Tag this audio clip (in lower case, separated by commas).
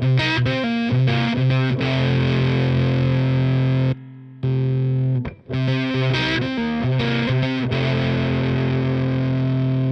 plucked string instrument, guitar, distortion, musical instrument, music, effects unit, inside a small room